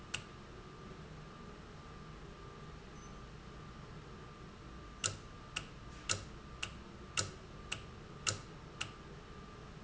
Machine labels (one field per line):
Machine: valve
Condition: normal